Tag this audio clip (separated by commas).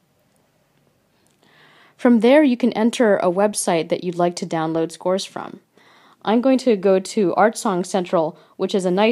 Speech